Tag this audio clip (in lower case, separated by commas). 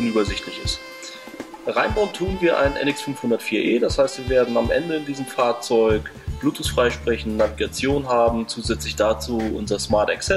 music, speech